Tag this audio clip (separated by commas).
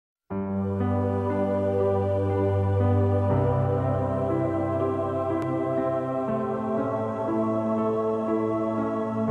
Music